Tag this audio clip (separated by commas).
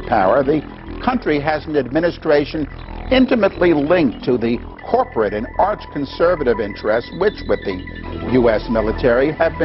Speech, Male speech, monologue, Music